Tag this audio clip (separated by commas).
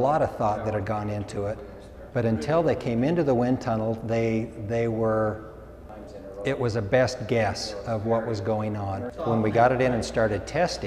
Speech